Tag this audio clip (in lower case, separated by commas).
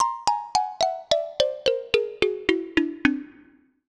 percussion, musical instrument, marimba, music, mallet percussion